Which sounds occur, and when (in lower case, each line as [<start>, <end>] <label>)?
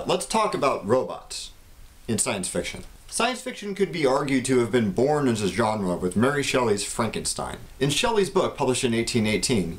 [0.00, 9.75] background noise
[0.06, 1.53] male speech
[1.96, 2.80] male speech
[3.22, 7.67] male speech